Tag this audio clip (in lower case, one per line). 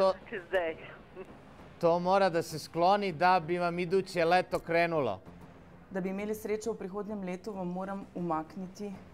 speech